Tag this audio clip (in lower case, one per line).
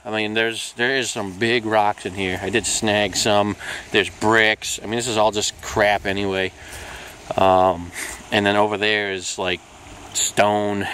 speech